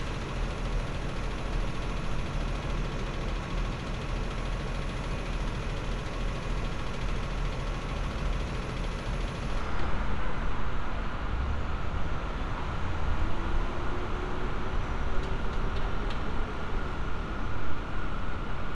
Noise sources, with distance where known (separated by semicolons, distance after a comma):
engine of unclear size